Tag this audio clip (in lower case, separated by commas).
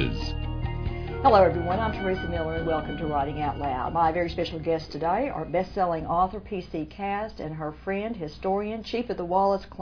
speech, music